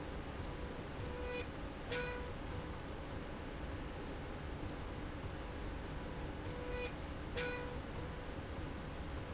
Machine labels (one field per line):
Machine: slide rail